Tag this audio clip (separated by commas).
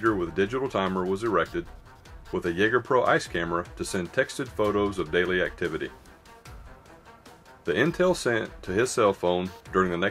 Speech, Music